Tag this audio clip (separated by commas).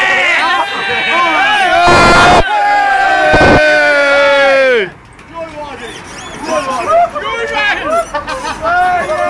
Speech